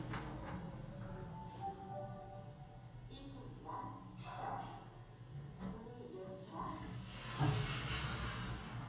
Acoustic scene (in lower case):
elevator